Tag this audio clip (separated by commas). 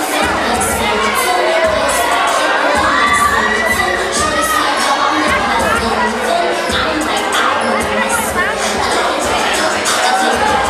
Music, Speech